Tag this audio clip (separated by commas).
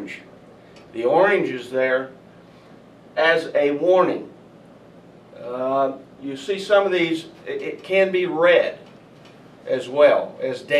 Speech